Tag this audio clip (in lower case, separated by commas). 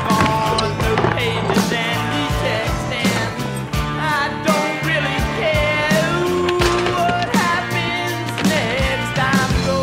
music, skateboard